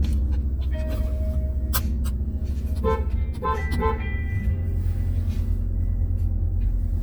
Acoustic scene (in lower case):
car